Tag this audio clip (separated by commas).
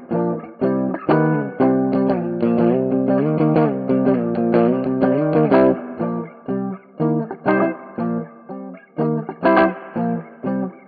Music, Guitar, Electric guitar, Musical instrument